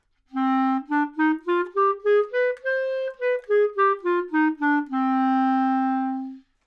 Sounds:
music
wind instrument
musical instrument

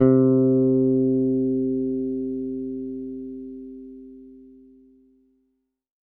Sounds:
music
guitar
bass guitar
plucked string instrument
musical instrument

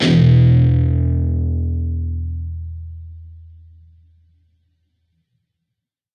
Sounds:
musical instrument
plucked string instrument
guitar
music

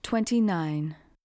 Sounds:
speech
female speech
human voice

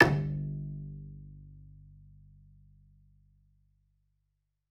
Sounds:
music
bowed string instrument
musical instrument

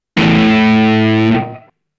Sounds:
plucked string instrument
music
musical instrument
guitar

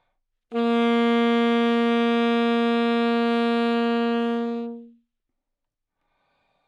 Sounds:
wind instrument
musical instrument
music

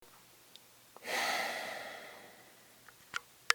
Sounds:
breathing
human voice
sigh
respiratory sounds

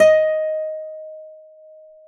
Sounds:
musical instrument
music
guitar
acoustic guitar
plucked string instrument

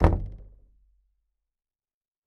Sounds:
domestic sounds
knock
door

